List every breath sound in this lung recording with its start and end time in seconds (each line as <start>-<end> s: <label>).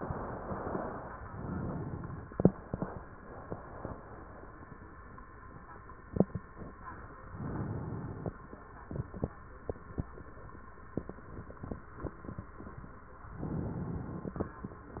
1.25-2.37 s: inhalation
7.29-8.28 s: inhalation
13.36-14.49 s: inhalation